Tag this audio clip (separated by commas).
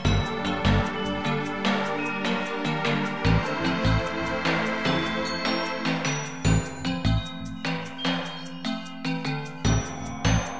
Background music, Music